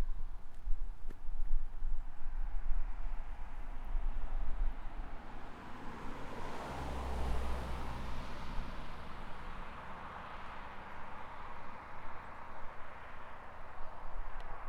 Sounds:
motor vehicle (road), vehicle

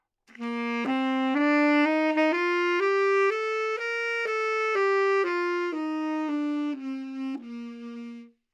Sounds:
musical instrument, music, woodwind instrument

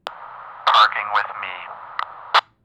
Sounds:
human voice, speech, male speech

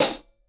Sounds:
music, hi-hat, cymbal, percussion, musical instrument

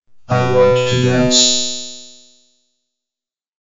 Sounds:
human voice, speech, speech synthesizer

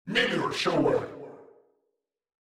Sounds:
human voice

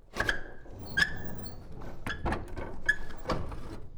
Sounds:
squeak

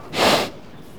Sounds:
animal, livestock

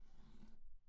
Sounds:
drawer open or close, home sounds

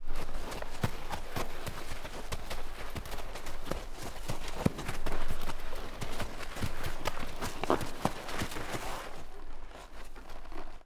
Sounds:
animal, livestock

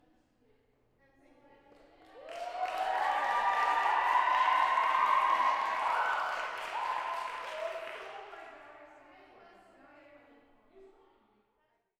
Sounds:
human group actions, cheering, applause

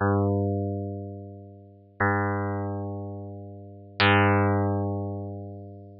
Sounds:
music, musical instrument, plucked string instrument, guitar

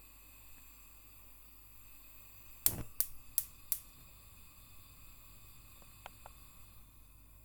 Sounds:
fire

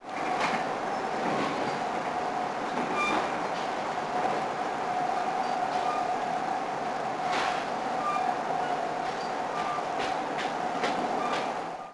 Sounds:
rail transport, train, vehicle

